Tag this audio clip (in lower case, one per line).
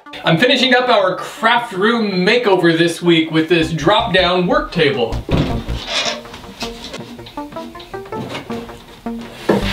opening or closing drawers